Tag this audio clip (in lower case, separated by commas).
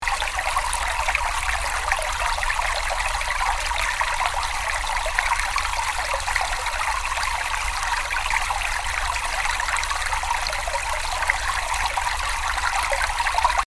stream, water